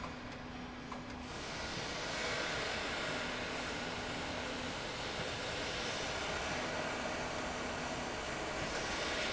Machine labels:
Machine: slide rail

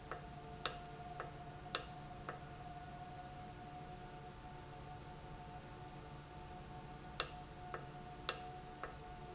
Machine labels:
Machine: valve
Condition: normal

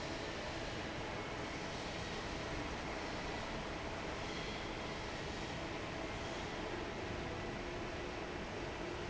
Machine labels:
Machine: fan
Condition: normal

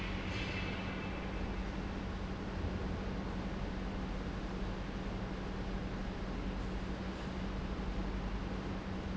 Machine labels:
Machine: pump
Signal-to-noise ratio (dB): -6 dB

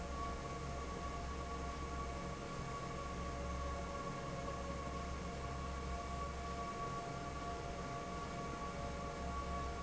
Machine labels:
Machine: fan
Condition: normal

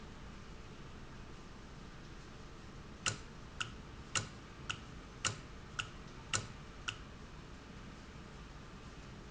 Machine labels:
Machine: valve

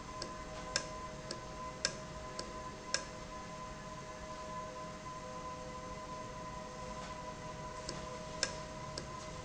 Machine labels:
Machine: valve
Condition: normal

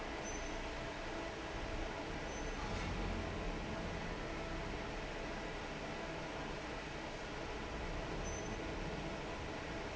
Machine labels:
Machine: fan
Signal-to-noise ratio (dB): 0 dB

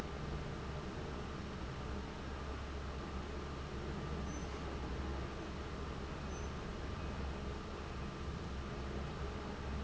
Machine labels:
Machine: fan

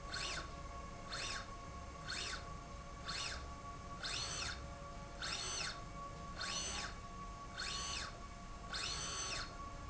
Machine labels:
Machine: slide rail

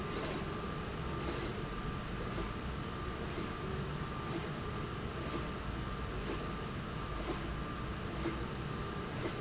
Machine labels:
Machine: slide rail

